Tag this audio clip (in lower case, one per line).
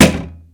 thump